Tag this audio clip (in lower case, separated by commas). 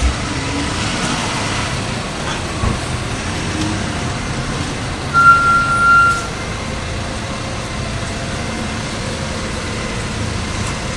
vehicle